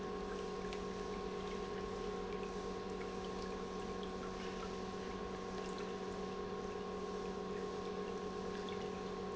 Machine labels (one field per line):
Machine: pump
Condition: normal